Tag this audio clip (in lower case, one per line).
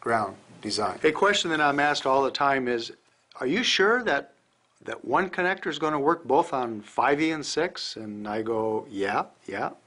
speech